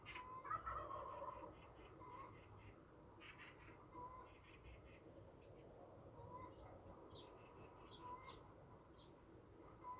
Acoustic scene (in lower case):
park